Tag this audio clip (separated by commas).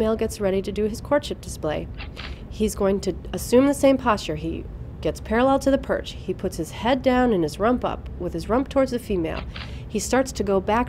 Speech